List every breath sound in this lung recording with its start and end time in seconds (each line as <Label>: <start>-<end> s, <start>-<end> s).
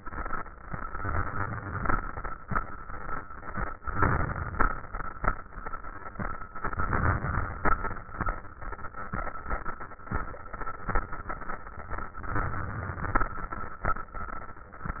Inhalation: 0.85-1.93 s, 3.85-4.93 s, 6.56-7.64 s, 12.24-13.31 s